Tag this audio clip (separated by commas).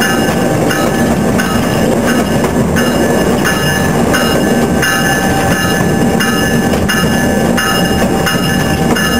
Vehicle, outside, urban or man-made, Train